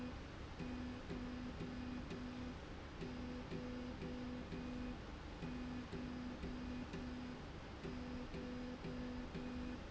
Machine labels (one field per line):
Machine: slide rail